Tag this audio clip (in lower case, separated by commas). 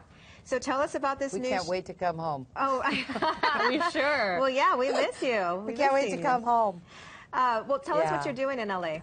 speech